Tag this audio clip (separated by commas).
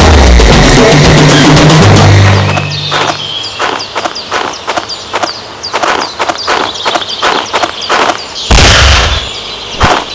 Run, Music